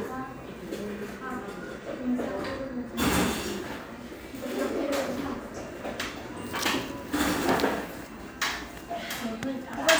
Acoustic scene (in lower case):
cafe